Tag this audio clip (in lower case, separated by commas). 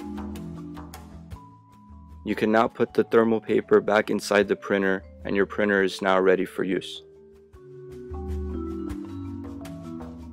music, speech